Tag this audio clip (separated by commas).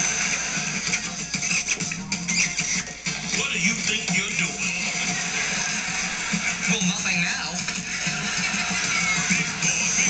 Speech, Music